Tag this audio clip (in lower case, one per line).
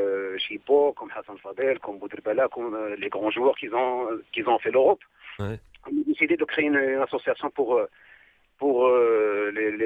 speech
radio